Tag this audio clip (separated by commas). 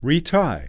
Speech, Male speech, Human voice